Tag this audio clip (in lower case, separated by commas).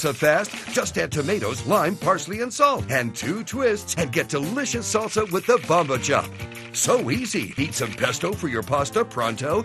music, speech